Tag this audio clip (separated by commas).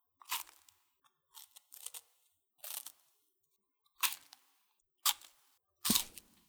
mastication